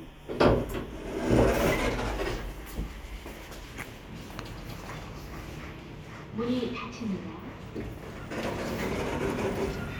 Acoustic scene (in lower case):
elevator